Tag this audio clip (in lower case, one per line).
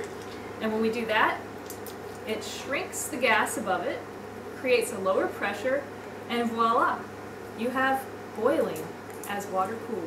speech